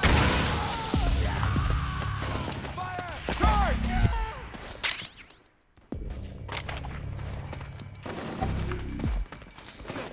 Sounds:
gunshot, machine gun

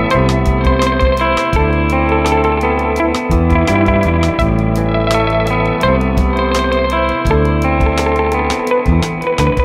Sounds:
music, distortion

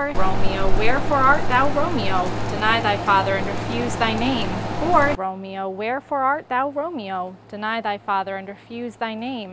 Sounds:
speech

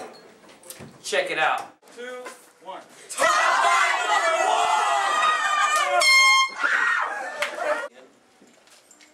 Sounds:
speech, inside a small room, truck horn

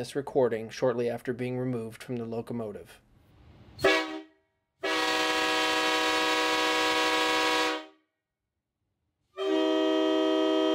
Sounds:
train horning

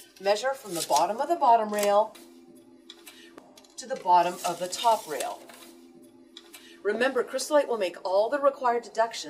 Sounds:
music, speech

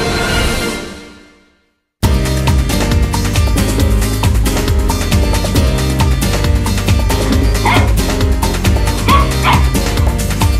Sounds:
dog, yip, bow-wow, pets, music

